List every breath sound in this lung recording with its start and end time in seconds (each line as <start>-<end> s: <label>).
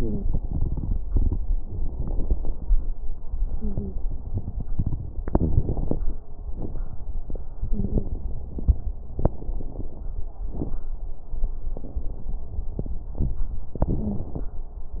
3.53-3.97 s: wheeze
7.68-8.12 s: wheeze
13.85-14.29 s: wheeze